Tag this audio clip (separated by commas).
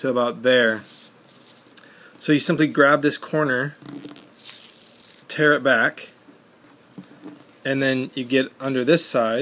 Speech, Tearing